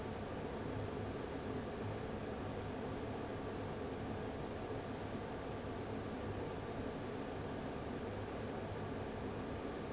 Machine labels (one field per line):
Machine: fan